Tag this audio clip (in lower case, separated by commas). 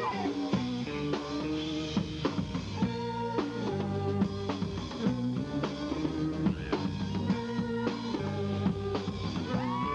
music, theme music